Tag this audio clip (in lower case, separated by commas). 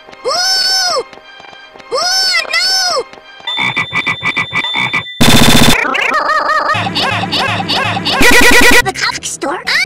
music, speech